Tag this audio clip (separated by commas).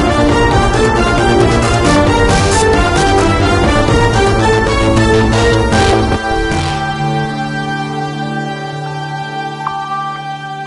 Music